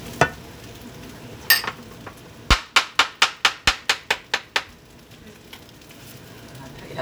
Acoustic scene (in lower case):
kitchen